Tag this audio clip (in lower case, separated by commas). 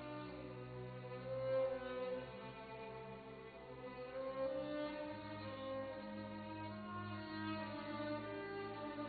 fiddle, musical instrument, music